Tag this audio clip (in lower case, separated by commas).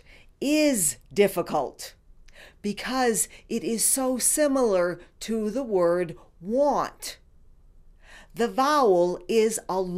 speech, female speech